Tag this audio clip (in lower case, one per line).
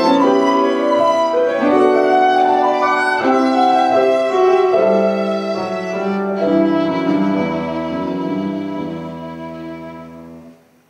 bowed string instrument
violin
piano
musical instrument
music